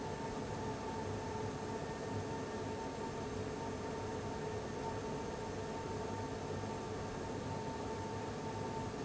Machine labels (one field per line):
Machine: fan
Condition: abnormal